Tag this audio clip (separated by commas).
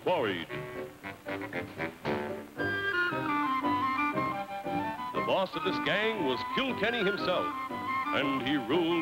Music, Speech